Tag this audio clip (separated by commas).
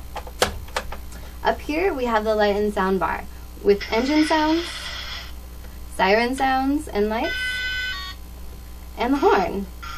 Car alarm